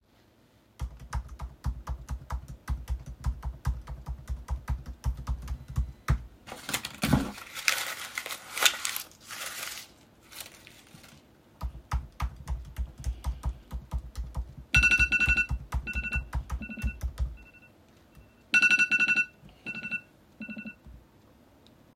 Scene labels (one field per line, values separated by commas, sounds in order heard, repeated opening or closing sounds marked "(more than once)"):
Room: living room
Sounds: keyboard typing, phone ringing